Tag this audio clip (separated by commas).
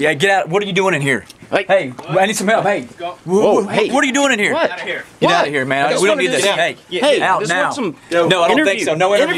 Speech